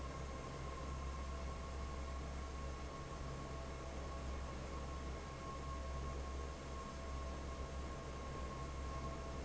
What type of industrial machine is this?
fan